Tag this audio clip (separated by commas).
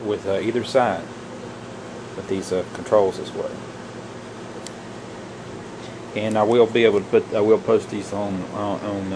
Speech, inside a small room